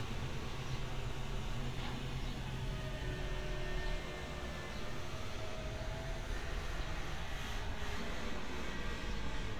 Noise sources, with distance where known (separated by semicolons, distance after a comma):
unidentified powered saw, far